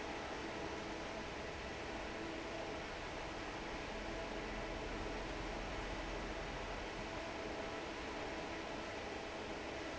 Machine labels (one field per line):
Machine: fan